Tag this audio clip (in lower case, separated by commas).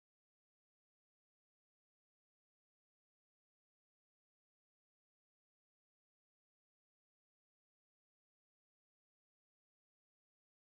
strike lighter